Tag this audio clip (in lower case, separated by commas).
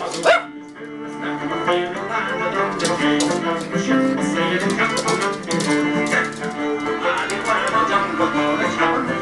bow-wow, pets, music, animal, dog